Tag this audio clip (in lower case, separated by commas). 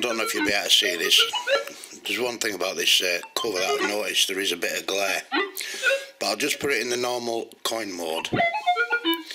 speech